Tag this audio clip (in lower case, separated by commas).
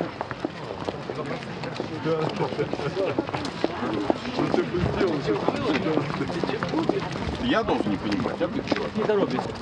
speech